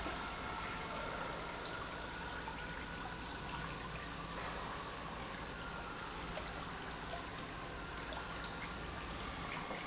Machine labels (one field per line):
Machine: pump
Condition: normal